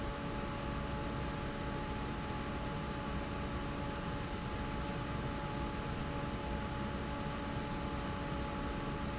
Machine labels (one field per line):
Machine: fan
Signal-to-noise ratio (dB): -6 dB